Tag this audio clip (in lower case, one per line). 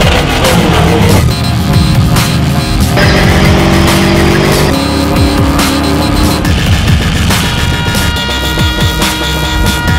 music
vehicle